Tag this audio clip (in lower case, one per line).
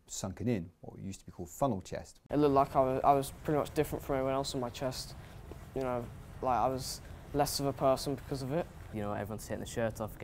speech